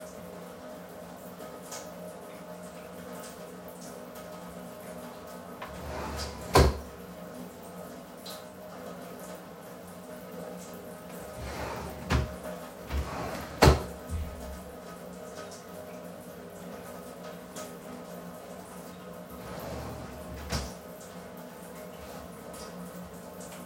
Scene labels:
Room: hallway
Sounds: running water, wardrobe or drawer (more than once)

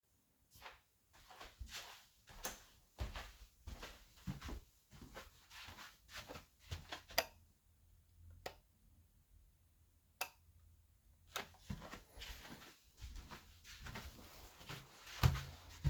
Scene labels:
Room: kitchen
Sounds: footsteps, light switch

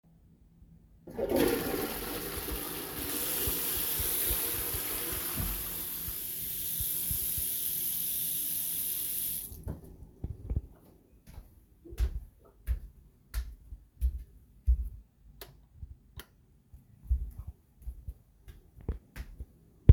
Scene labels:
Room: lavatory, bathroom, bedroom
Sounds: toilet flushing, running water, footsteps, light switch

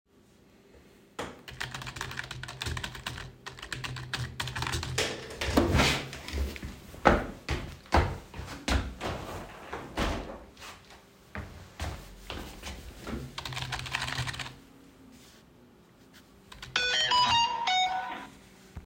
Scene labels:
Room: office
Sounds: keyboard typing, footsteps, window, phone ringing

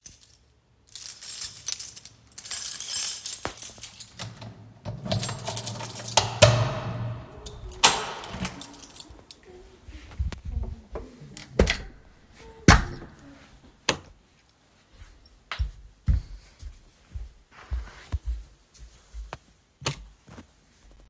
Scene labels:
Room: hallway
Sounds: keys, door (more than once), light switch, footsteps

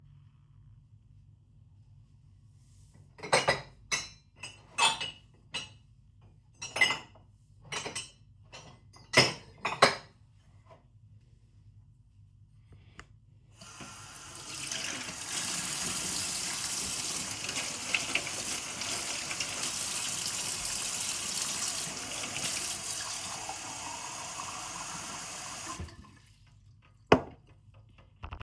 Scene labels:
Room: kitchen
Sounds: cutlery and dishes, running water

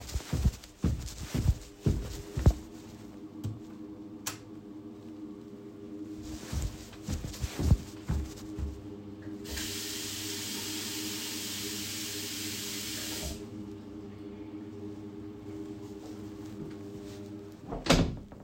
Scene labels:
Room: lavatory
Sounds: footsteps, light switch, running water, door

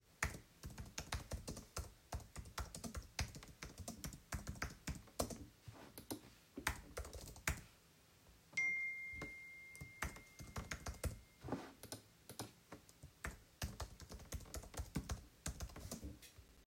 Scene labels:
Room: office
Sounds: keyboard typing, phone ringing

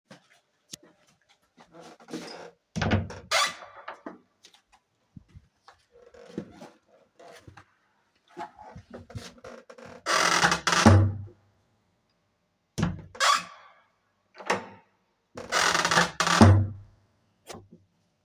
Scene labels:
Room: living room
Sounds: footsteps, door (more than once)

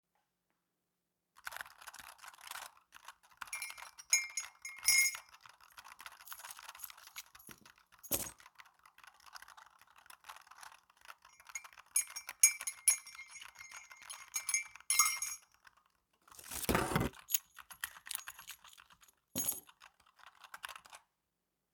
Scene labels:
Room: office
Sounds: keyboard typing, cutlery and dishes, keys

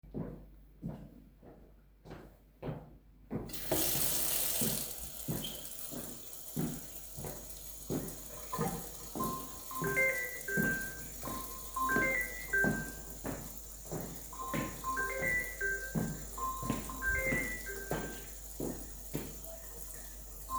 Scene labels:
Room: kitchen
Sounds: footsteps, running water, phone ringing

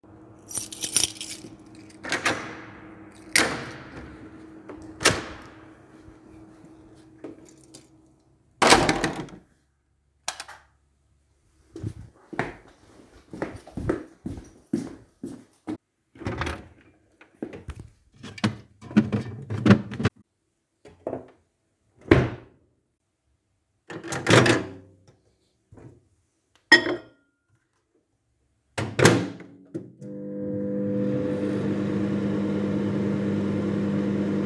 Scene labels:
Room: kitchen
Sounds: keys, door (more than once), light switch, footsteps, microwave, cutlery and dishes

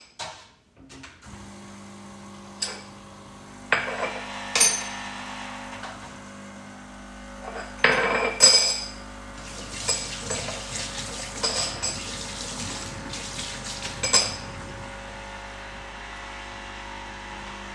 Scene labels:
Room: kitchen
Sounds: coffee machine, cutlery and dishes, running water

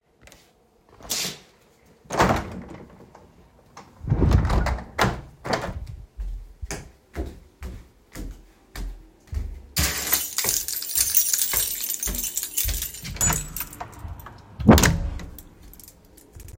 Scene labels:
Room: hallway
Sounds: window, footsteps, keys, door (more than once)

